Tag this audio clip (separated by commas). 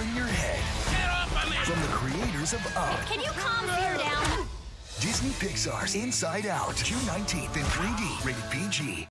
Speech, Music